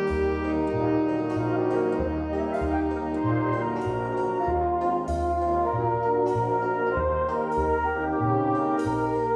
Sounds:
Brass instrument

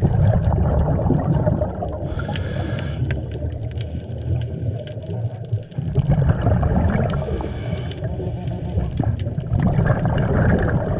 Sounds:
scuba diving

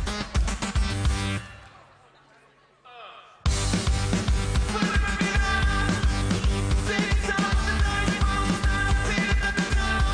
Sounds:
Music

